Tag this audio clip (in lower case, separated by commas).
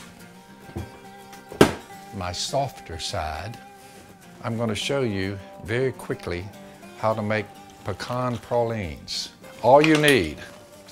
music, speech